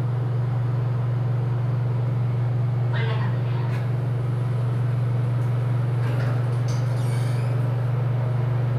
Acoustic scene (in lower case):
elevator